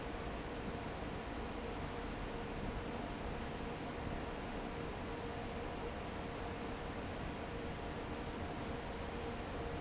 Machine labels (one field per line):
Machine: fan